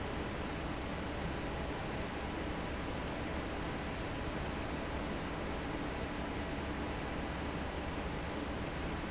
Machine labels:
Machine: fan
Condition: normal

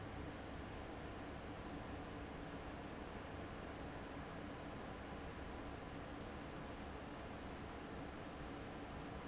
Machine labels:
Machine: fan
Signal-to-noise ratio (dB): 6 dB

